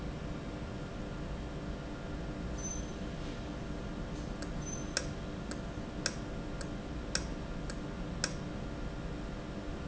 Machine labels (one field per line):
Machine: valve